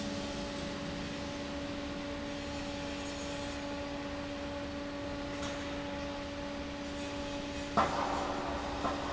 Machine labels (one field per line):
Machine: fan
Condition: abnormal